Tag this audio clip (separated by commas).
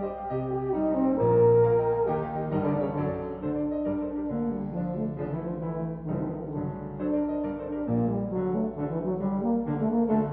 playing french horn, Music, French horn